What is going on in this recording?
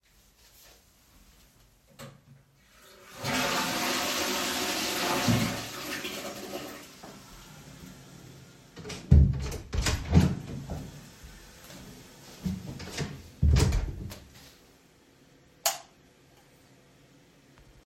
I flushed the toilet and, opened the door and closed again, finally switched the lights off.